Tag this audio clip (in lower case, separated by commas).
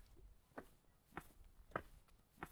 walk